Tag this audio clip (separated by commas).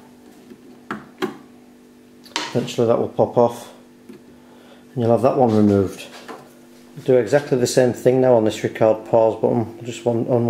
Speech, inside a small room